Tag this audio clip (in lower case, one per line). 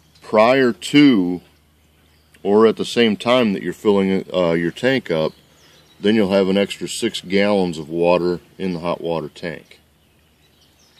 speech